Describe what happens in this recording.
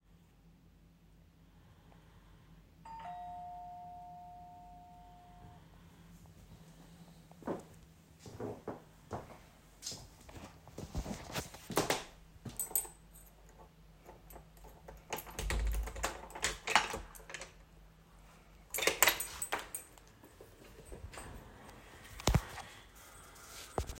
I heard the bell ring, walked to the door, unlocked it and opened it